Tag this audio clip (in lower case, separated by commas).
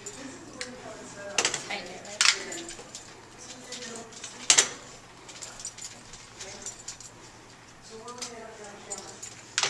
speech